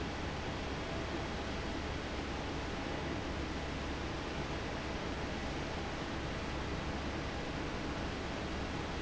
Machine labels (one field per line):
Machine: fan